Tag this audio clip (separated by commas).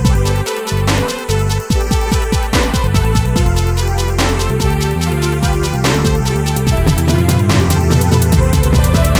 Music